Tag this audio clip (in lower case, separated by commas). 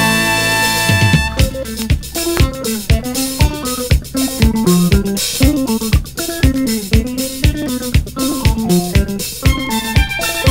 blues, jazz, music